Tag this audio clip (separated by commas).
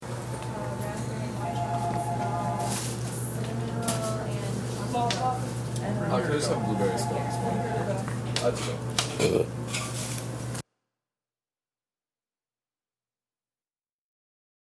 Burping